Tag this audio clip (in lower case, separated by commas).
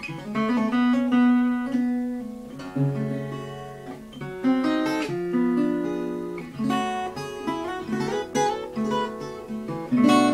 guitar, acoustic guitar, music, strum, plucked string instrument, musical instrument